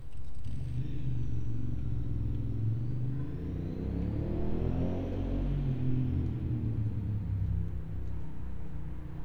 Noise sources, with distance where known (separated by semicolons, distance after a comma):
engine of unclear size, near